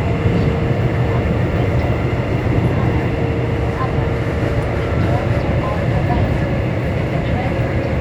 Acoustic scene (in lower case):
subway train